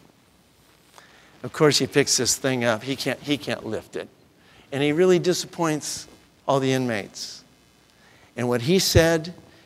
Male speaking a monologue